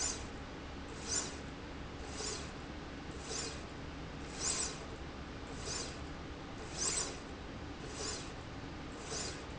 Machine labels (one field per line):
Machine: slide rail